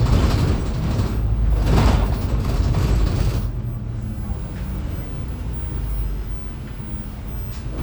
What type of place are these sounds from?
bus